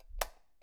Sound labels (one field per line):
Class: switch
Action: being turned on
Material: plastic